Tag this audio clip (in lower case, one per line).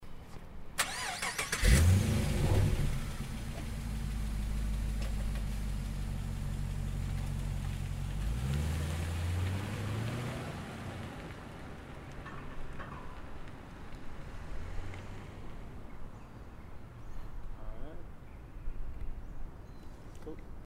vroom
engine